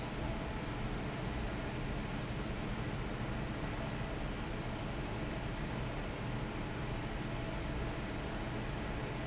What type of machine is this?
fan